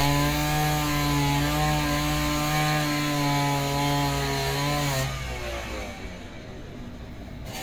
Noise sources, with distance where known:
chainsaw

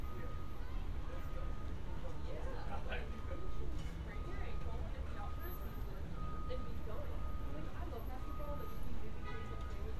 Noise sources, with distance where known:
car horn; person or small group talking, near

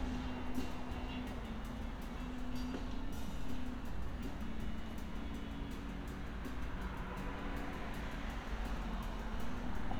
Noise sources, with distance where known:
music from an unclear source

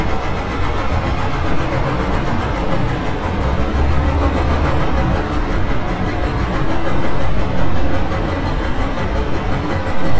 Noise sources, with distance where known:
unidentified impact machinery

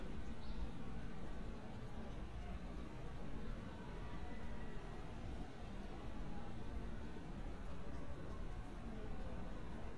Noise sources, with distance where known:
background noise

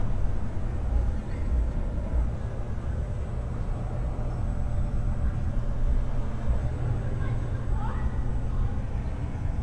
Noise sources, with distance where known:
person or small group talking, far

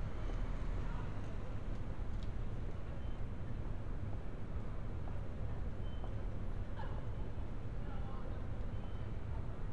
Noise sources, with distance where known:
person or small group talking, far

